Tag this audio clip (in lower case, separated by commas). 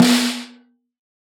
snare drum, percussion, musical instrument, drum, music